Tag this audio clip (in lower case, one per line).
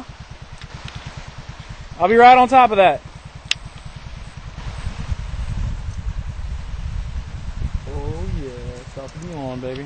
speech